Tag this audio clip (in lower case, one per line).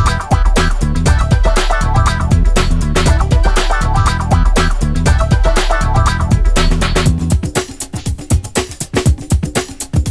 music